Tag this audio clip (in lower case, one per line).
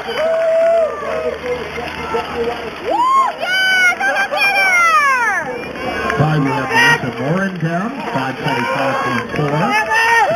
crowd